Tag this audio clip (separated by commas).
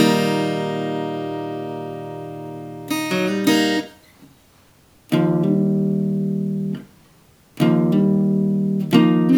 Music, Guitar, Musical instrument, Plucked string instrument, Acoustic guitar